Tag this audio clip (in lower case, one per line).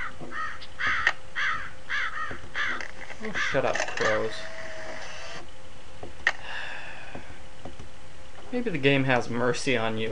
speech